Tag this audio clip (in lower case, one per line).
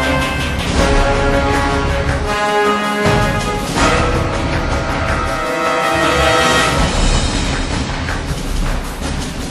music